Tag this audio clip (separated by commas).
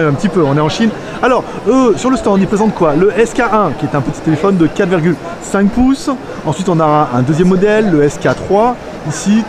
Speech